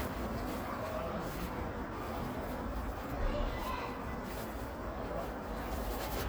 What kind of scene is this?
residential area